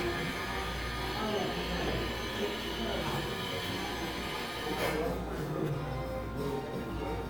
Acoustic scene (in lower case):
cafe